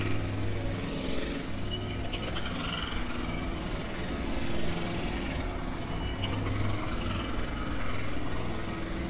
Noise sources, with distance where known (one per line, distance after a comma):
jackhammer, near